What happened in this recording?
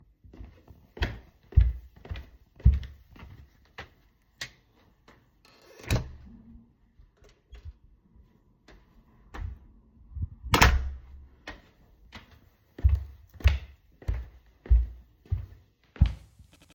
I walked along the hallway and turned on the light switch. Then I opened the door, entered the room, closed the door behind me, and made some more footsteps.